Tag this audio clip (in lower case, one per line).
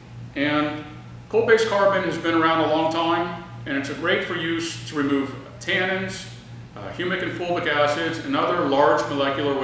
speech